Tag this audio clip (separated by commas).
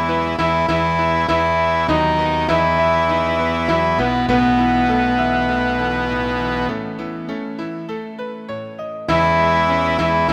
Cello, Music, Musical instrument